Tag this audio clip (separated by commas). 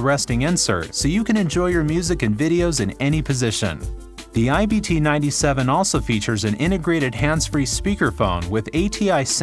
Music, Speech